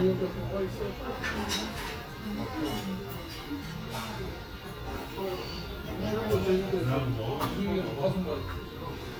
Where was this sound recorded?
in a restaurant